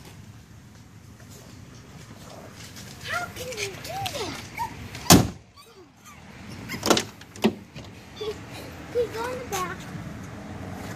Low noise followed by a girl speaking and dog whining